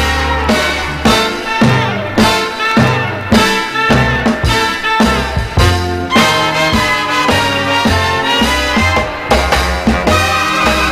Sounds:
Music, Orchestra

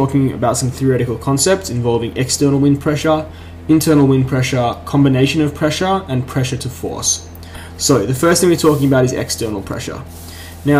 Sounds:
Speech

